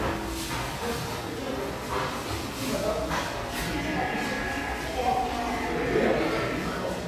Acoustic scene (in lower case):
cafe